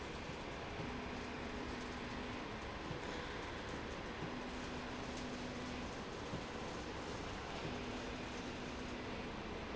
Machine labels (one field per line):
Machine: slide rail